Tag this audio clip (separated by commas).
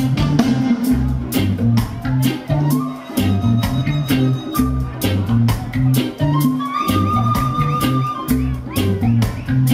Music